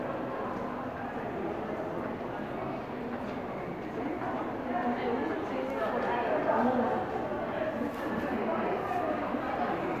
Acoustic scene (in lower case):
crowded indoor space